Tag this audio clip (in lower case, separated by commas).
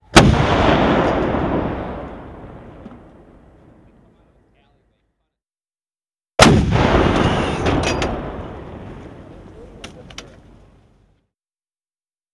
explosion, gunshot